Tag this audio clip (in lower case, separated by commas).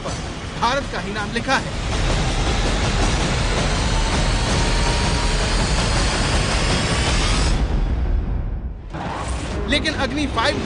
missile launch